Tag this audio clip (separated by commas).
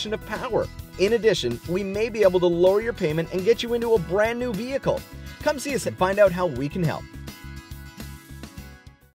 Music, Speech